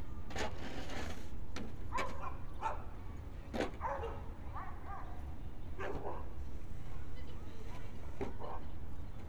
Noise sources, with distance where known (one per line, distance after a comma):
dog barking or whining, near